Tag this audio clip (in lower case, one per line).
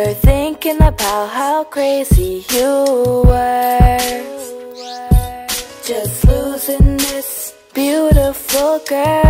music